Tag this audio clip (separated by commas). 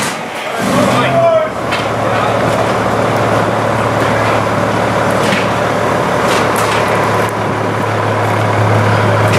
Truck, Speech, Vehicle